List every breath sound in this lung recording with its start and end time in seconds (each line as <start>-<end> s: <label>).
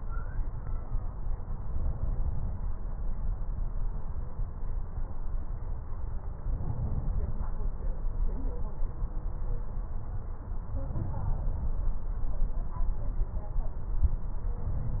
1.57-2.67 s: inhalation
6.44-7.38 s: inhalation
10.83-11.77 s: inhalation